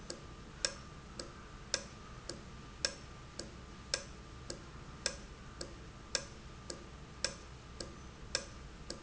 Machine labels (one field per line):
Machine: valve